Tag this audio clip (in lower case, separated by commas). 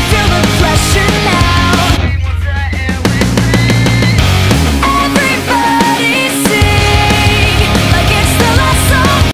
music